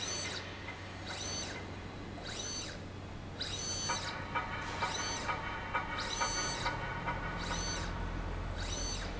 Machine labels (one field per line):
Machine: slide rail